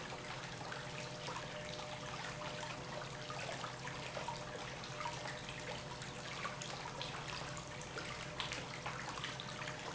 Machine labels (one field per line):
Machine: pump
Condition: normal